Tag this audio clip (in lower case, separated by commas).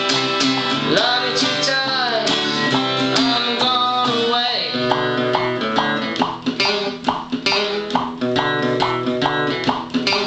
acoustic guitar, plucked string instrument, music, guitar, strum, musical instrument